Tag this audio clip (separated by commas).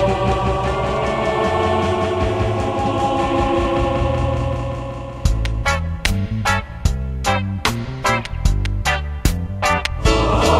Music